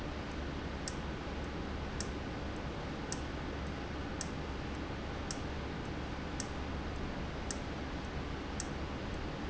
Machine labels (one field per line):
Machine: valve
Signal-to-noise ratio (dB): -6 dB